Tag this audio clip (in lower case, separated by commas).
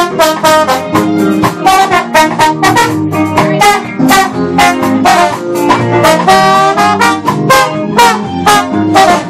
music, jazz, speech